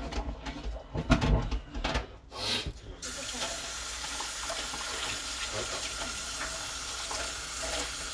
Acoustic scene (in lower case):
kitchen